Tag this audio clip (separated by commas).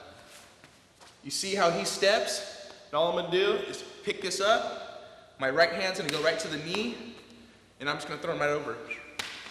Speech, Tap